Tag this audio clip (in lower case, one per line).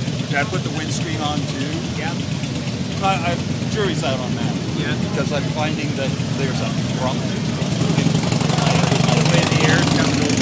speech
vehicle
motorcycle